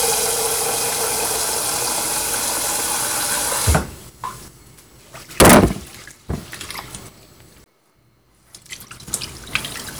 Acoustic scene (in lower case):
kitchen